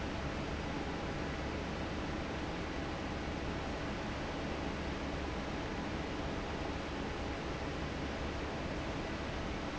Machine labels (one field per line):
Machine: fan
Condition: normal